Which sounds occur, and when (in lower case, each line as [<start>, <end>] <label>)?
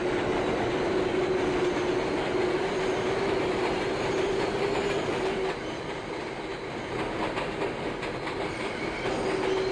[0.00, 6.88] train wheels squealing
[0.00, 9.71] train
[0.01, 0.36] clickety-clack
[1.45, 1.87] clickety-clack
[3.30, 5.91] clickety-clack
[6.41, 7.65] clickety-clack
[8.01, 8.62] clickety-clack
[8.35, 9.71] train wheels squealing
[9.02, 9.62] clickety-clack